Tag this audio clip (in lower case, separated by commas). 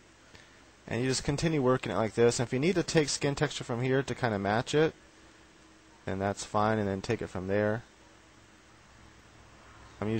speech